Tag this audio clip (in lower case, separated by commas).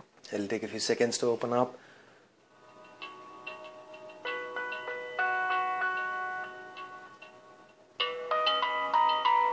speech, music